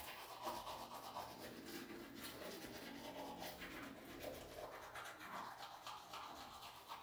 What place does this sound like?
restroom